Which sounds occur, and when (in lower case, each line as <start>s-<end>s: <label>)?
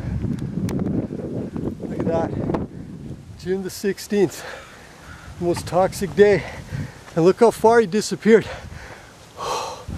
0.0s-3.4s: wind noise (microphone)
0.0s-9.9s: wind
0.4s-0.4s: tick
0.7s-0.7s: tick
0.8s-0.9s: tick
1.6s-1.6s: tick
2.0s-2.0s: tick
2.0s-2.3s: male speech
2.5s-2.6s: tick
3.4s-4.4s: male speech
4.3s-4.8s: breathing
4.9s-7.0s: wind noise (microphone)
5.1s-5.4s: breathing
5.4s-6.4s: male speech
6.4s-7.1s: breathing
7.1s-8.4s: male speech
8.3s-9.0s: wind noise (microphone)
8.5s-9.1s: breathing
9.4s-9.8s: breathing
9.8s-9.9s: wind noise (microphone)